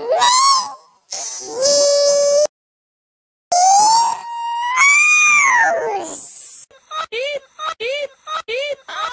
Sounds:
Speech

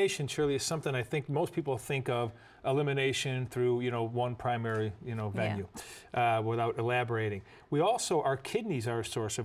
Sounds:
Speech

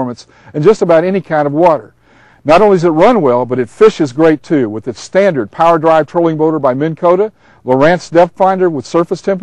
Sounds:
Speech

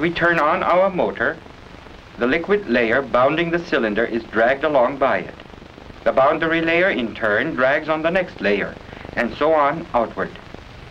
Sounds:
Speech

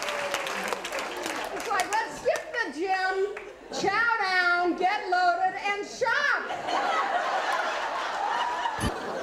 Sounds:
Speech, Female speech

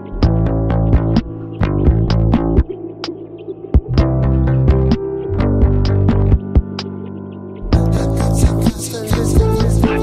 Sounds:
Music, Electronic music

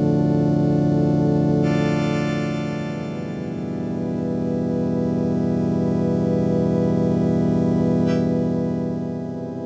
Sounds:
Music, Harmonic

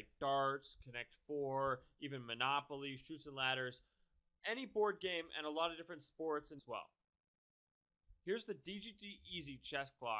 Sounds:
Speech

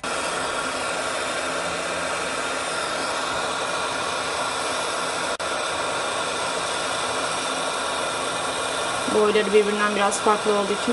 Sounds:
Speech

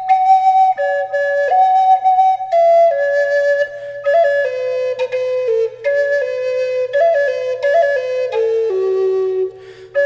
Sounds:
Music, Flute

